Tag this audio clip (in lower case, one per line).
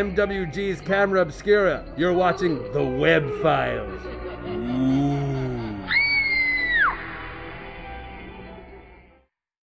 speech